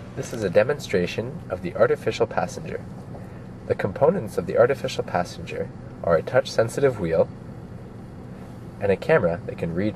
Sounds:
Speech

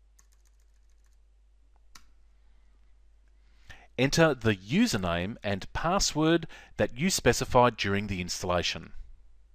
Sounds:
Typing, Speech

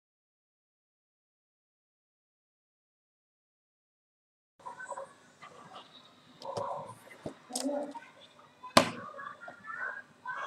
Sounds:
Speech

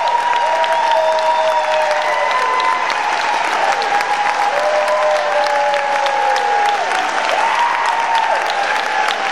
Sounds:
Applause, people clapping

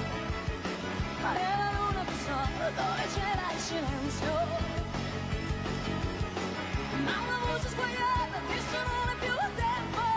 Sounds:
Progressive rock, Music

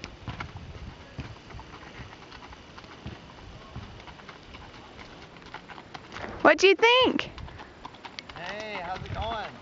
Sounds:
Speech, Clip-clop

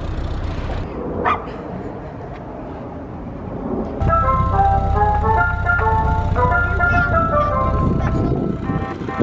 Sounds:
ice cream van

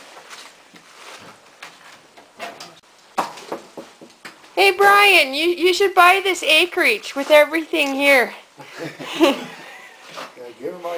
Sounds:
Speech

